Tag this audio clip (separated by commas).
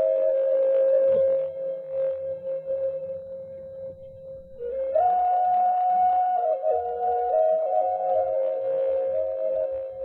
inside a small room, Music